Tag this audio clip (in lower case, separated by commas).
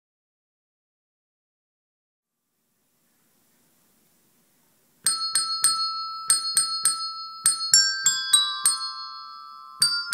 music, jingle (music)